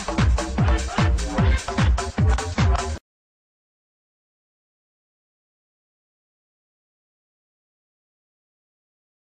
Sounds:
Music

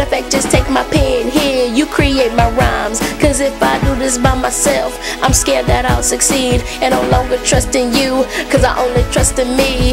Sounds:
Music, Female singing

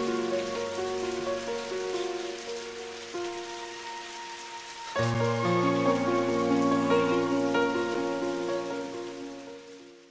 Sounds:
Rain on surface, Rain

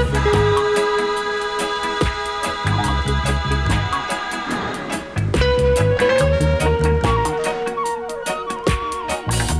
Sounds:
Music

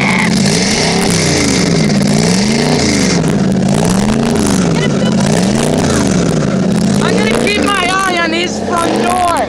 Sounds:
Heavy engine (low frequency), Speech, Vehicle, vroom

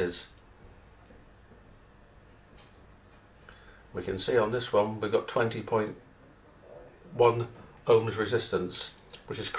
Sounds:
Speech

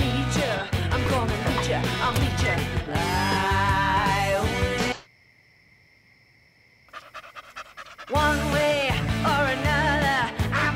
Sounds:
Animal, Music, pets, Yip

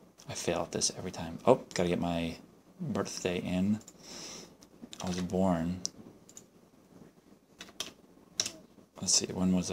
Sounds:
Speech

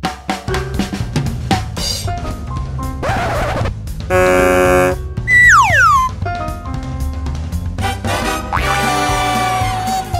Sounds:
Music

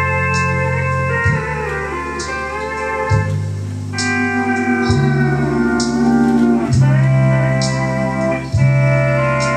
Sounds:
Hammond organ, Music, playing hammond organ

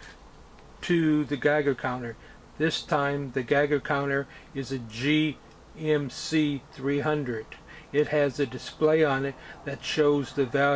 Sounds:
Speech

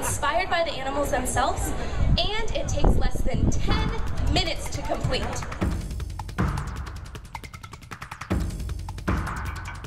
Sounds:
Speech, Music

